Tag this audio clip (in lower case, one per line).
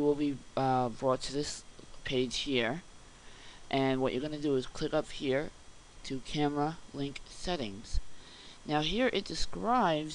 speech